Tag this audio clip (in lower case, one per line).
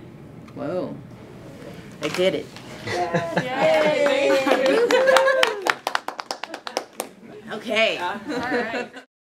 speech